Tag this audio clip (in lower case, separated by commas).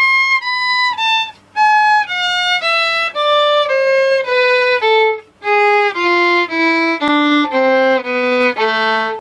music, musical instrument